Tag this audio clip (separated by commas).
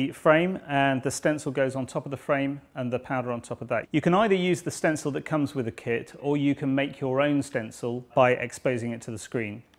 Speech